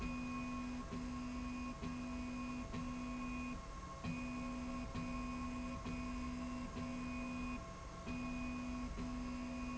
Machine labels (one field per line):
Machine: slide rail